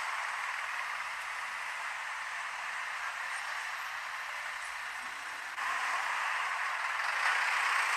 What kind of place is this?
street